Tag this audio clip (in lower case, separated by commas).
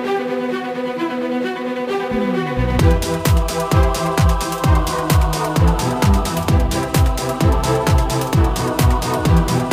music, soundtrack music